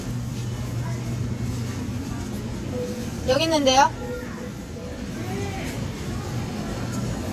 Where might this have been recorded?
in a crowded indoor space